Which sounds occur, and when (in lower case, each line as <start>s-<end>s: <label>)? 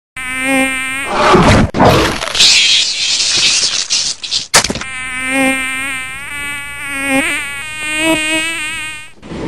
4.8s-9.1s: mosquito